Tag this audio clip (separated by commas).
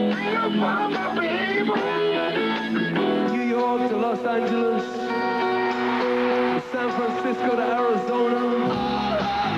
Music